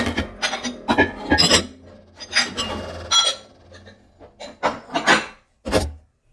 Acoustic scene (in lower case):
kitchen